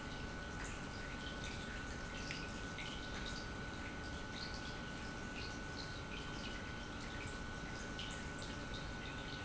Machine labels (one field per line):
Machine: pump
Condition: normal